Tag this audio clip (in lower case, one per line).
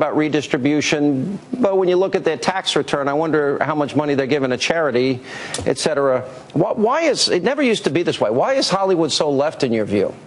male speech
monologue
speech